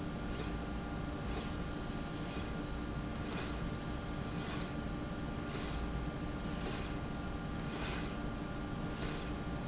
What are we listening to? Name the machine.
slide rail